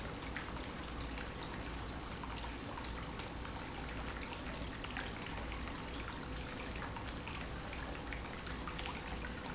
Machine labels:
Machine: pump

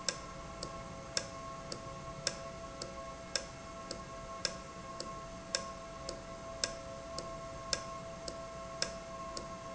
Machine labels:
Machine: valve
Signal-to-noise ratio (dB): 0 dB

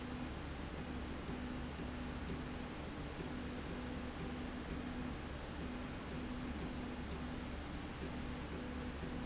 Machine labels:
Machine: slide rail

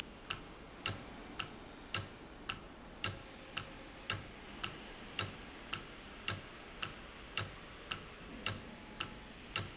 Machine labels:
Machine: valve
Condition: normal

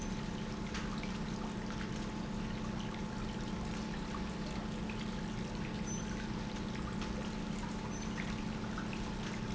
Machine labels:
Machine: pump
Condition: normal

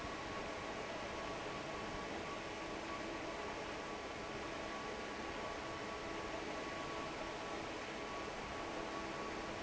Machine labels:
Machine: fan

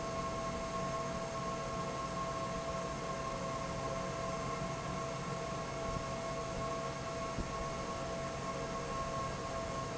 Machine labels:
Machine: fan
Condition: normal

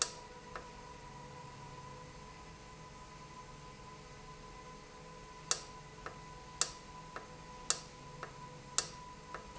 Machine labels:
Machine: valve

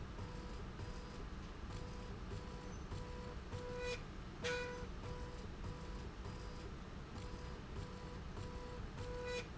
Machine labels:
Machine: slide rail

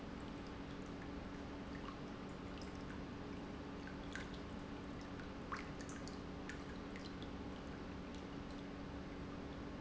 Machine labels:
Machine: pump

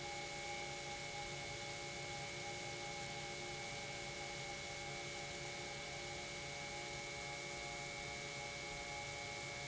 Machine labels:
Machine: pump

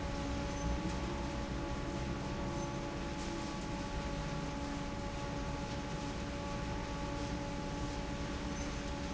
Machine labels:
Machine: fan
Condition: normal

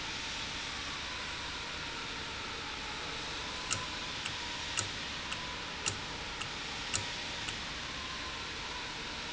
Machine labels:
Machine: valve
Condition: normal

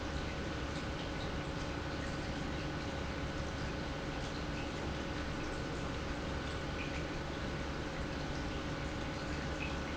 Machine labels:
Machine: pump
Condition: normal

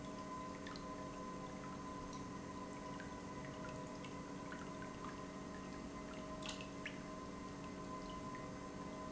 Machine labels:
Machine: pump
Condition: normal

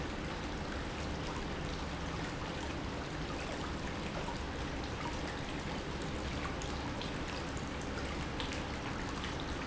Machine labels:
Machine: pump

